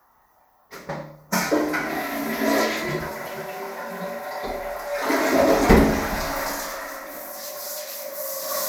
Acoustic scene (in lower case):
restroom